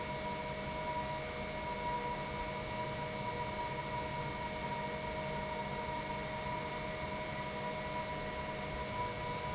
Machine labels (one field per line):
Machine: pump